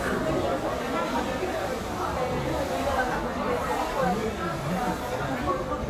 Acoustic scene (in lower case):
crowded indoor space